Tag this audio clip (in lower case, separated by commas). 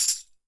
percussion, musical instrument, music, tambourine